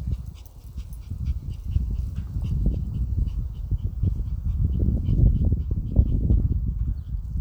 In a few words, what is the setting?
park